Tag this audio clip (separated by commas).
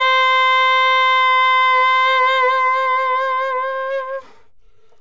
Musical instrument, Music, woodwind instrument